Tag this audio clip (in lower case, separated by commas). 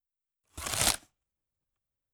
domestic sounds, packing tape, tearing